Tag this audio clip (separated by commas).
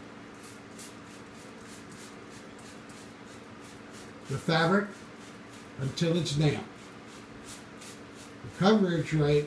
Speech, Spray